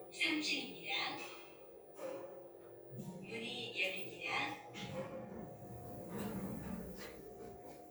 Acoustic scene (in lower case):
elevator